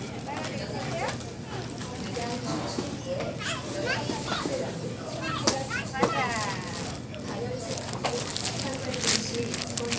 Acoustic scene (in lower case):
crowded indoor space